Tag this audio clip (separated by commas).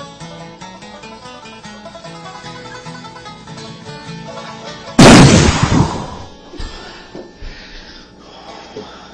lighting firecrackers